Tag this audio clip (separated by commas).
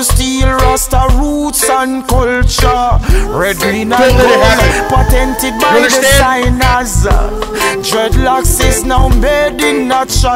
Music, Speech